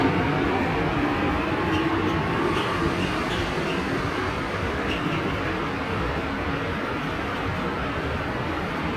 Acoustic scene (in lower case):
subway station